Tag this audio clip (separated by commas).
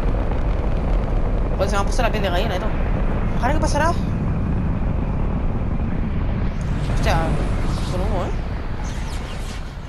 missile launch